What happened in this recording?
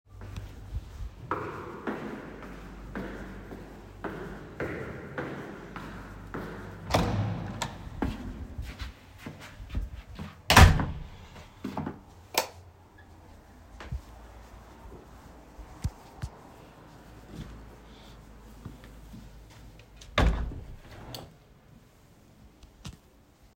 I walked in the hallway to go to my room. I opened the door, turn on the light and open the window.